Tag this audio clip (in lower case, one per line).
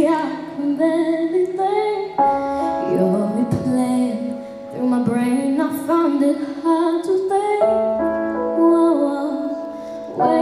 female singing
music